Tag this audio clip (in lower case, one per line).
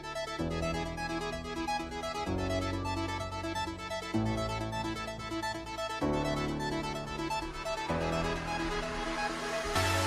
music